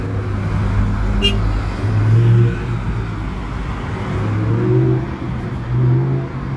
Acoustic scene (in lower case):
street